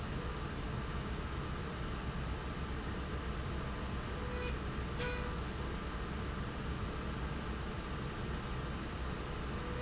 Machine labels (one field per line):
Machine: slide rail